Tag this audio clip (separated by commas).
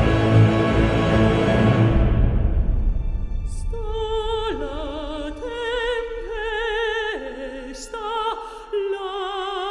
Christmas music, Music